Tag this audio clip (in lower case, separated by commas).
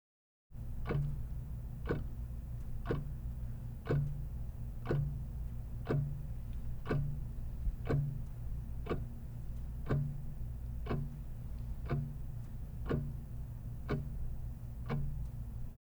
tick-tock, mechanisms, clock